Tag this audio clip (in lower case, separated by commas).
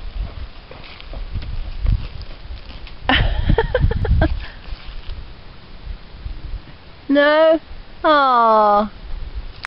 speech